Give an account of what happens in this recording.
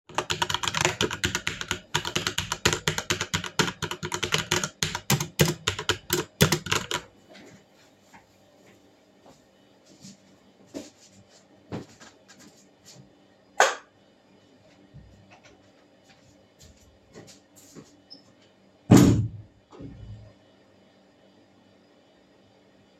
I was typing on a keyboard in a bedroom, then I got up turned the lights off in the bedroom, then I have walked out of the bedroom and I have shut the door of the bedroom.